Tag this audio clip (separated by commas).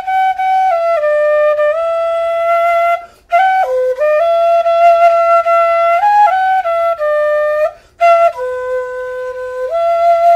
playing flute